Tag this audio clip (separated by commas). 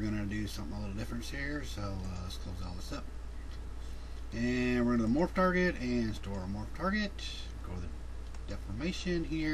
Speech